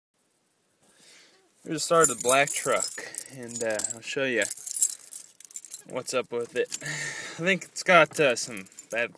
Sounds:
Speech, Keys jangling

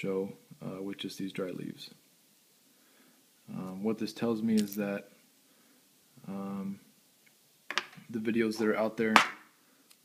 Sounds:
Speech

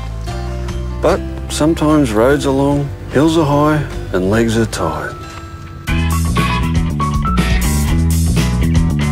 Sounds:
Speech, Music

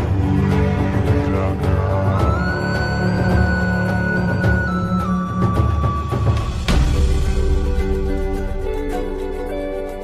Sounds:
Music

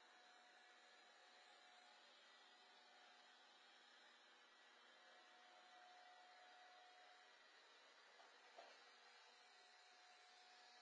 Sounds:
vacuum cleaner cleaning floors

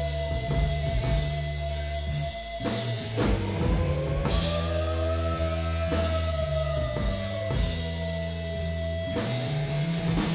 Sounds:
Soul music, Music

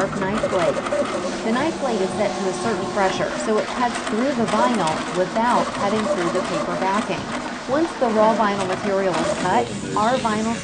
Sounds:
Speech

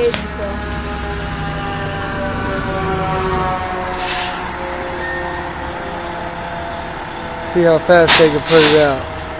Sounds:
Speech, Vehicle

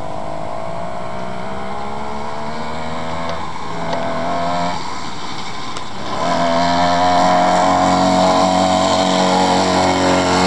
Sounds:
Vehicle

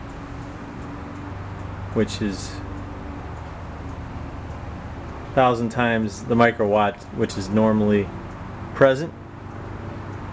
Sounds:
Speech

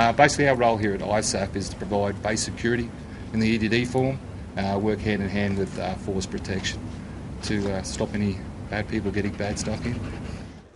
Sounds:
Speech

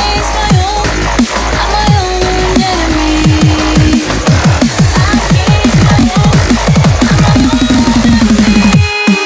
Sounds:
Music

